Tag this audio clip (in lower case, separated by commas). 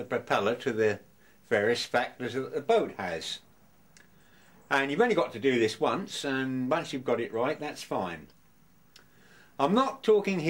speech